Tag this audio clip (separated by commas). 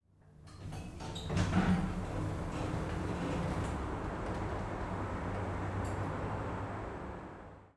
home sounds, Door, Sliding door